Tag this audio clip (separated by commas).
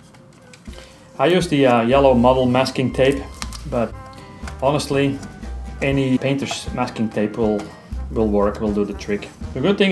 Music, Speech